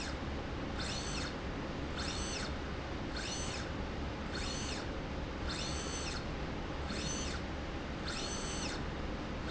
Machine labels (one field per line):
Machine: slide rail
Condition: normal